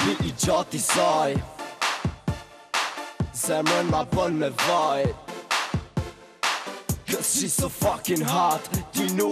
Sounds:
funk
exciting music
music

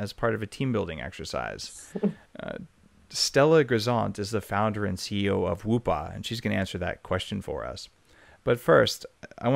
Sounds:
speech

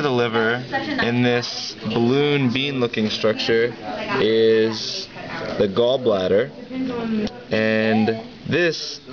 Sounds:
speech

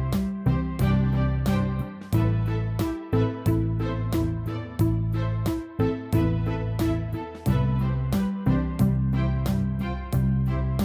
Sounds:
music

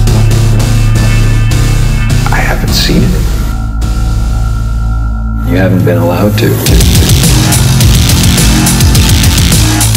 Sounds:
music
speech

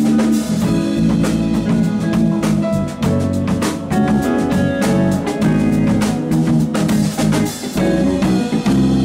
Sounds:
music
rimshot

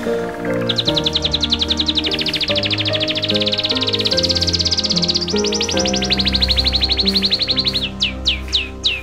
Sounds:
bird vocalization
tweet

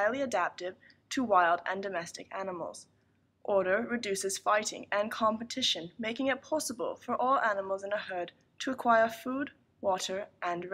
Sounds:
speech

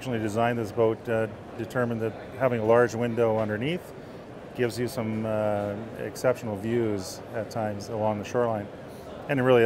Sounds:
speech

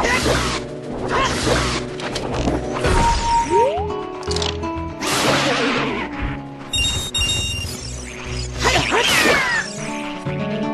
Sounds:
music
outside, rural or natural

